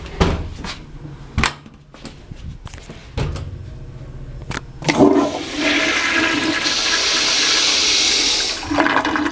A door is shut, a toilet flushes